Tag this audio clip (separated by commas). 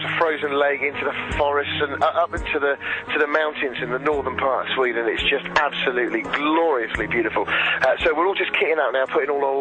Music, Speech